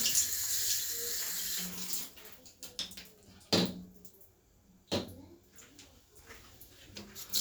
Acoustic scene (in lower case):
restroom